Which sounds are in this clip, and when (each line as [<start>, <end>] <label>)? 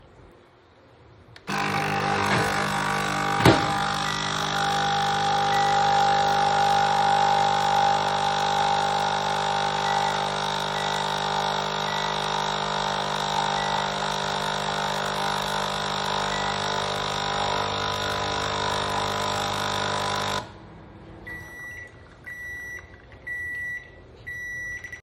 [1.41, 20.63] coffee machine
[3.40, 24.98] microwave